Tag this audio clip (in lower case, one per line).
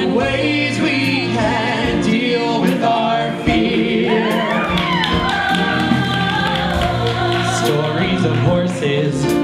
music